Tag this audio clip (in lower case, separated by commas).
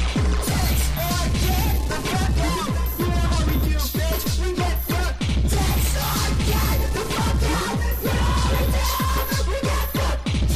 music